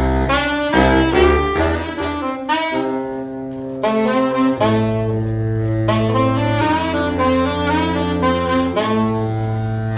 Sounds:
musical instrument
music
saxophone
playing saxophone

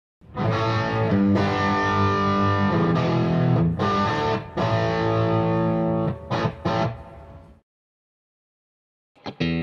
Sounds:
acoustic guitar
musical instrument
music
plucked string instrument
electric guitar
guitar

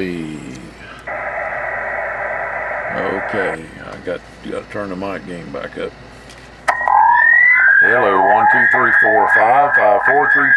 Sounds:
inside a small room
speech
radio

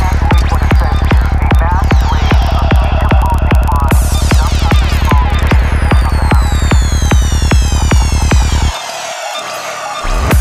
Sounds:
music

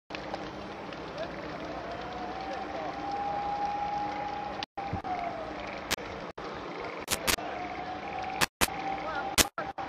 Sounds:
fire
wind noise (microphone)
wind

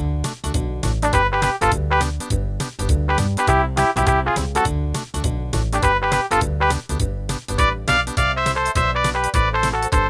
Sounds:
music

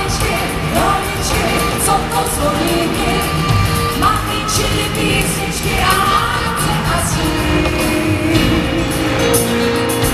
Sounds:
jingle bell
music

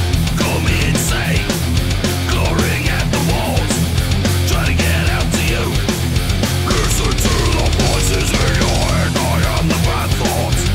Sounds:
music

